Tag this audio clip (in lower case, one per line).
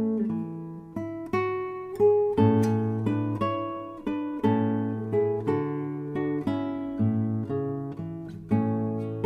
music
guitar
musical instrument
plucked string instrument